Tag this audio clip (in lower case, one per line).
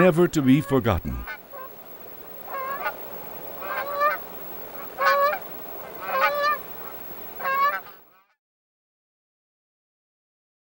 goose honking